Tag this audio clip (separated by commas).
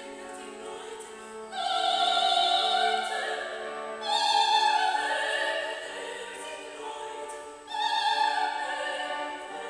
Music, Female singing